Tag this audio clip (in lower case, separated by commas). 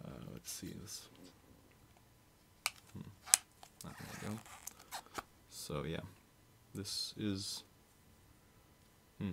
speech